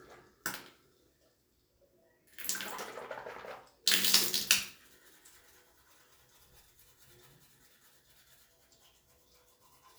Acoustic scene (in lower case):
restroom